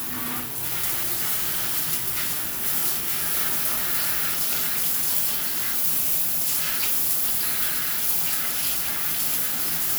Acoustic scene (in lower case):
restroom